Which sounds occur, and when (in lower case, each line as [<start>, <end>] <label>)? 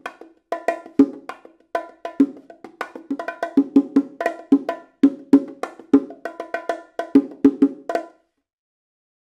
[0.00, 8.50] music